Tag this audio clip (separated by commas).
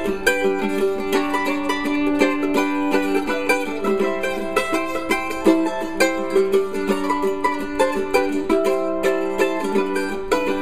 Music, Mandolin